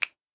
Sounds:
Hands, Finger snapping

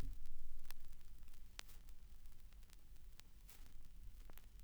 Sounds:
Crackle

